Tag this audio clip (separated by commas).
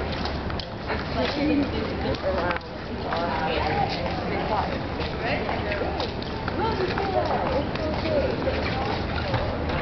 Speech, Walk